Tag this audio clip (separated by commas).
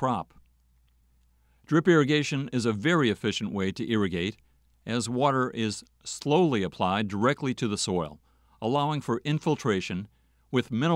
Speech